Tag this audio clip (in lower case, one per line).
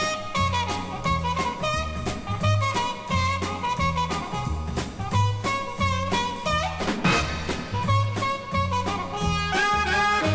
music